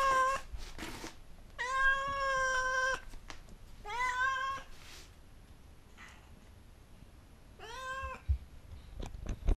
A cat is meowing